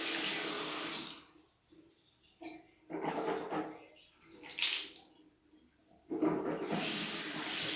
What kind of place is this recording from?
restroom